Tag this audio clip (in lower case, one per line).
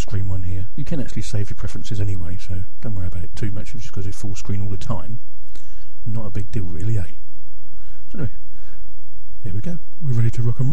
speech